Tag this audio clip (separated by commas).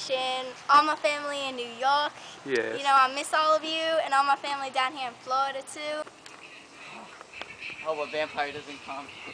Speech